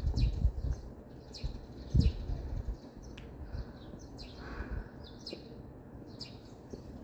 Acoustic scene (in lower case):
residential area